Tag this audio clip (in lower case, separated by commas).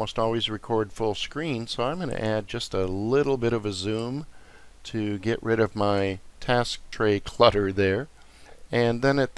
speech